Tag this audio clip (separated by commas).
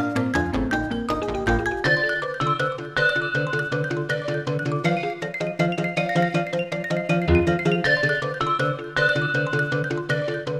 Music, Background music